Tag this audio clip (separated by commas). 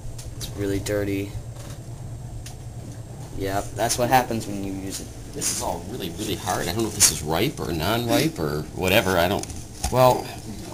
Speech